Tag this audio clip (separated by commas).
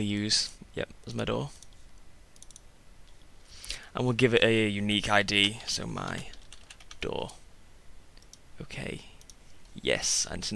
Speech